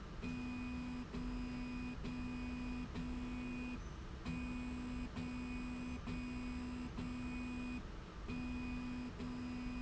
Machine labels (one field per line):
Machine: slide rail